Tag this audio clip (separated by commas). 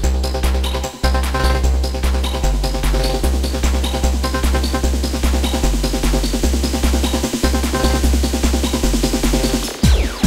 Music, Trance music